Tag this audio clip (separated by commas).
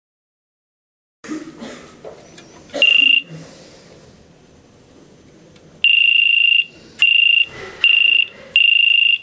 Fire alarm, Buzzer